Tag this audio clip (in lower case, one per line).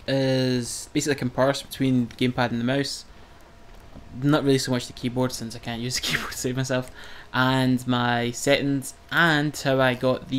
speech